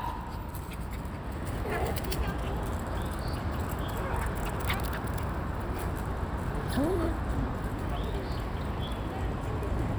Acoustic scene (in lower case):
park